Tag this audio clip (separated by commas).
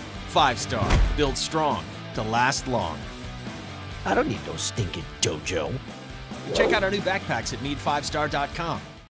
Speech, Music